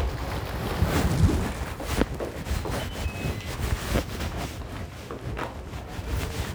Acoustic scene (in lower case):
elevator